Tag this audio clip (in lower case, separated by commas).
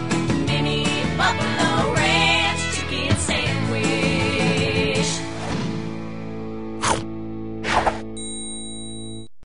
music